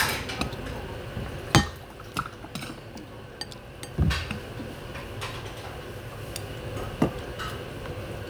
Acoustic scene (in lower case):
restaurant